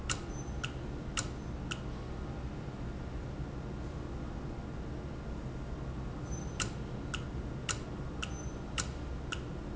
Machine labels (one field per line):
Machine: valve